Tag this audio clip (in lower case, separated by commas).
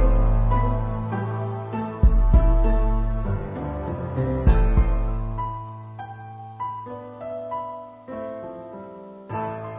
sampler, music